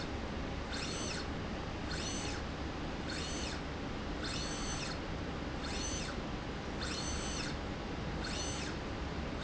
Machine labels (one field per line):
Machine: slide rail